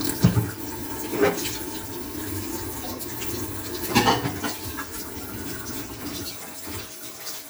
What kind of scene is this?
kitchen